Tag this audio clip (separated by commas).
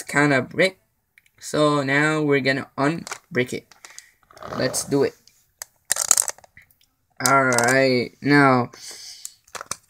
inside a small room, Speech